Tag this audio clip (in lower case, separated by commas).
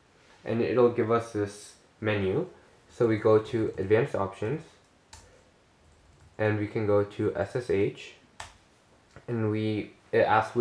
speech